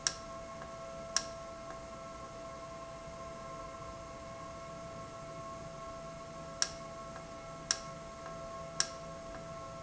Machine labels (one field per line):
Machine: valve